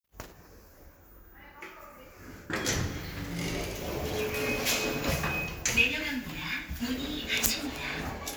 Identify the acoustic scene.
elevator